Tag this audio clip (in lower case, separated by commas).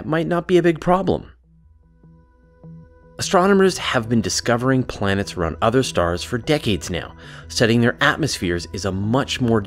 raining